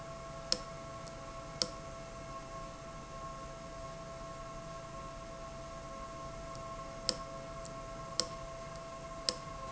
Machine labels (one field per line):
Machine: valve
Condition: abnormal